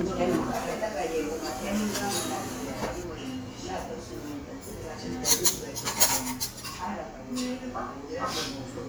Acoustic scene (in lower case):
crowded indoor space